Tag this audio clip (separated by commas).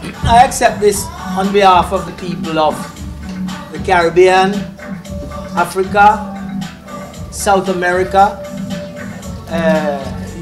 Speech, Music